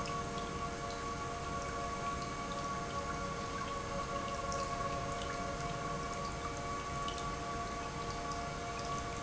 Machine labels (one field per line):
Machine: pump